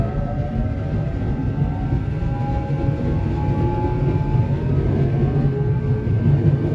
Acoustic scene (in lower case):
subway train